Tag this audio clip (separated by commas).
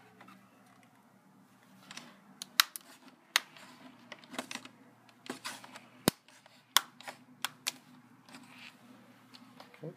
Speech, inside a small room